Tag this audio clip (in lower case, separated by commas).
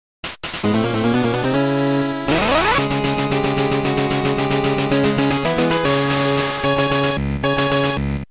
video game music, music